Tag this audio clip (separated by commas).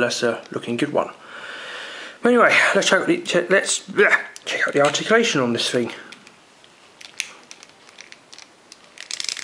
inside a small room, Speech